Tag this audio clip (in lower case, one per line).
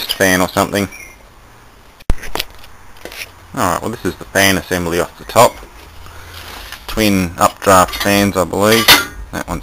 speech